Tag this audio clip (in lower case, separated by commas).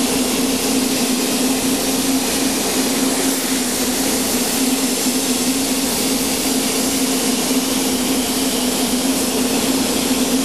inside a small room